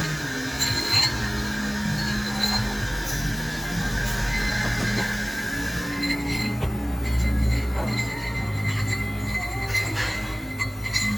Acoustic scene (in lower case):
cafe